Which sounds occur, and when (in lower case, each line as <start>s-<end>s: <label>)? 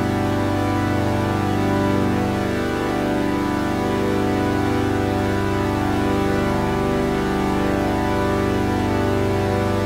0.0s-9.8s: electronic tuner
0.0s-9.8s: music